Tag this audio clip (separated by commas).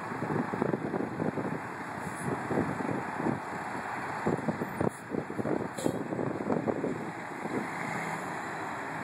Vehicle